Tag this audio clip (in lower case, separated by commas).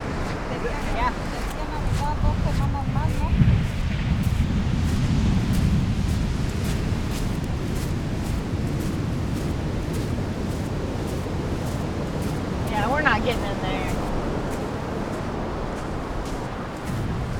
ocean, water, waves